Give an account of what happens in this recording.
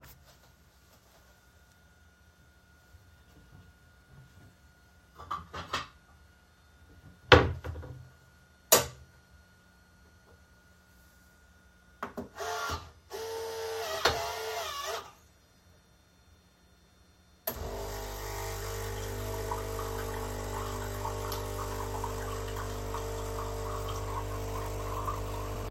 I opened the drawer in my kitchen, grabbed a glass cup, and closed it again, after that, I placed the cup in the coffee machine. Finally, pressed the ON_button, and the machine started